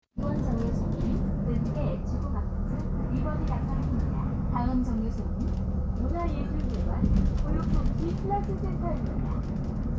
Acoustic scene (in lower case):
bus